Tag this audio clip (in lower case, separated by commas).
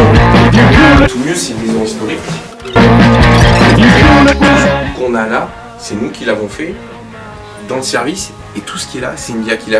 speech, music